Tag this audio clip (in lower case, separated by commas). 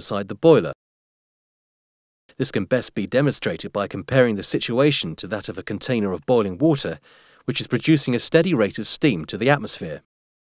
speech